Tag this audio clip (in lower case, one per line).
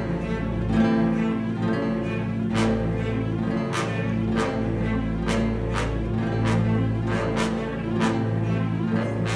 music